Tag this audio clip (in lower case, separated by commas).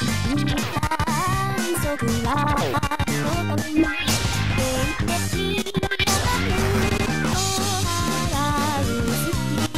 music